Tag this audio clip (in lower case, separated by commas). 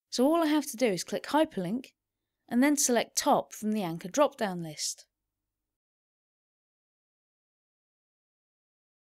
speech